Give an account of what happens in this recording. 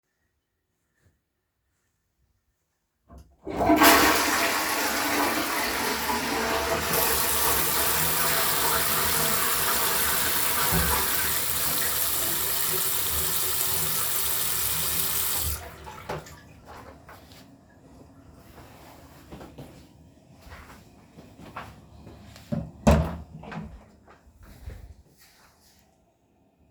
I flush the toilet, wash my hands and dry them with a towel, then I open the bathroom door.